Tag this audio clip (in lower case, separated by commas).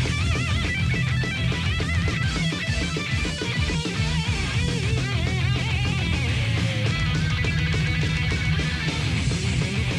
heavy metal, music